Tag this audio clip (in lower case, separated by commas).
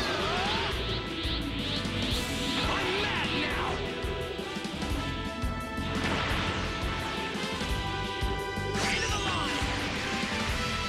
speech, music